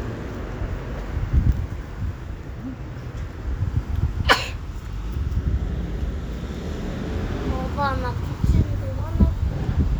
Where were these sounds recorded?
on a street